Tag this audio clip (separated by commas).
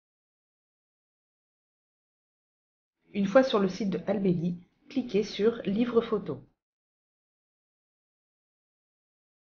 Speech